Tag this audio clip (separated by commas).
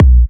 Percussion, Bass drum, Musical instrument, Music, Drum